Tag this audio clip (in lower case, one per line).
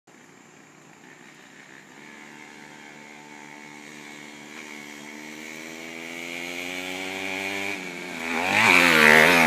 vehicle